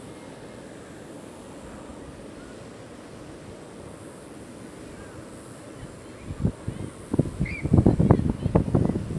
Insect buzzing followed by wind blowing on a microphone and then a bird chirping